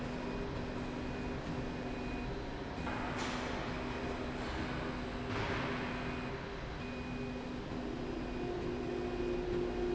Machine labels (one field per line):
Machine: slide rail